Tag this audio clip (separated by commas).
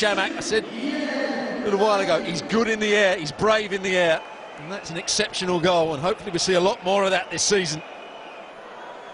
Speech